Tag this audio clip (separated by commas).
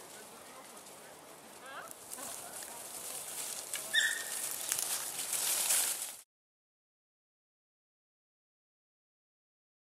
Speech